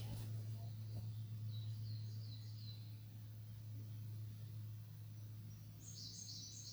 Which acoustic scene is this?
park